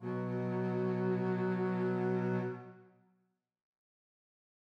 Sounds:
Musical instrument, Bowed string instrument, Music

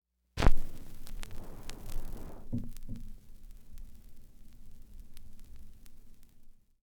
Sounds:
Crackle

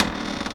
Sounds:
Cupboard open or close, Domestic sounds, Door

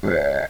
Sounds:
eructation

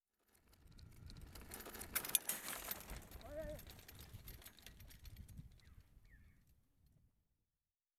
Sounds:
Vehicle, Bicycle

